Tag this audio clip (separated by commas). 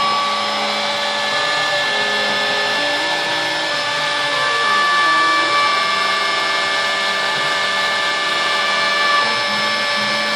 Music, inside a small room